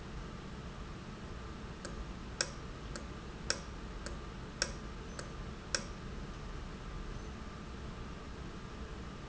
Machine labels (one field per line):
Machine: valve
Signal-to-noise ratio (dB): 0 dB